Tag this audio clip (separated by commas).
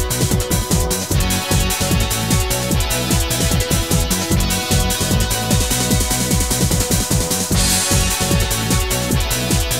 Music, Exciting music